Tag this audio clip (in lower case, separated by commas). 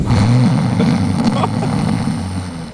laughter, human voice